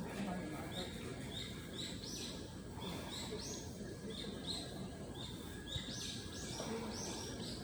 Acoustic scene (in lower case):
residential area